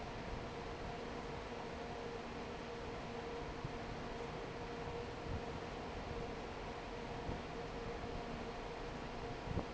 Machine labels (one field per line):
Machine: fan